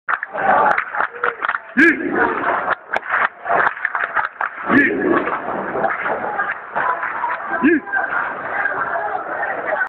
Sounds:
Speech

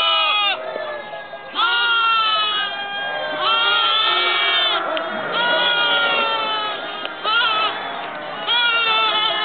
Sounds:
Animal, livestock, Goat, Sheep

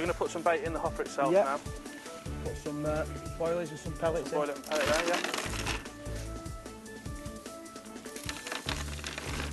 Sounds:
Speech, Music

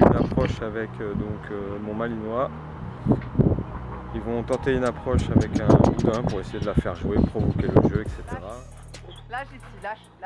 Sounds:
Music, Speech

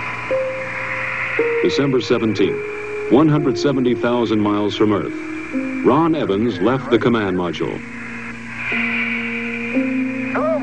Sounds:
Music, Speech

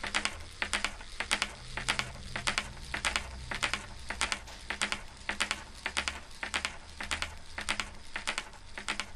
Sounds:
Clip-clop

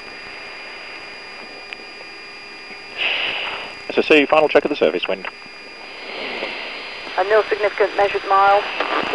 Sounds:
Speech

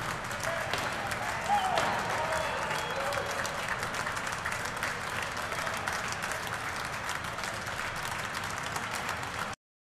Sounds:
Speech

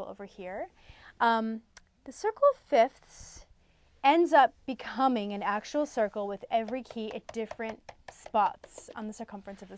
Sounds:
Speech

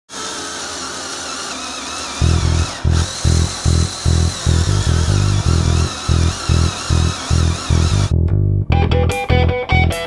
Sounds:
Music, inside a small room, Power tool

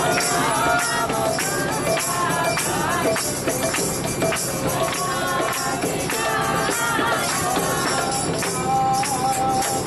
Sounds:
Water vehicle, Music

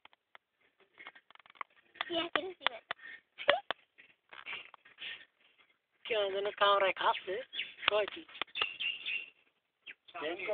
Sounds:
Speech

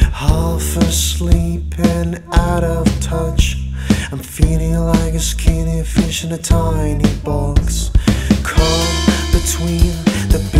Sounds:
Music

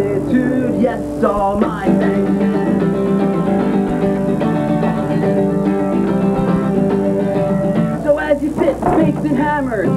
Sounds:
Guitar, Singing, Music, Bluegrass

